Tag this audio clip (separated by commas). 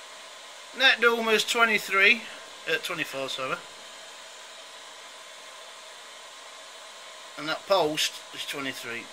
Speech